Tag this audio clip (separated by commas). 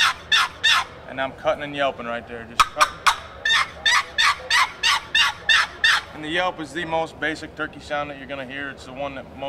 Turkey, Fowl